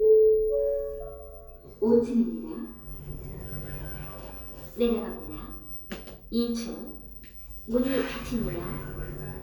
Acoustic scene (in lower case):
elevator